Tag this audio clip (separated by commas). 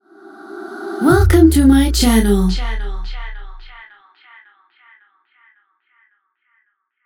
Human voice